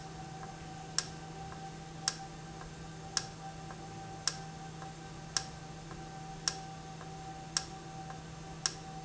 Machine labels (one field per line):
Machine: valve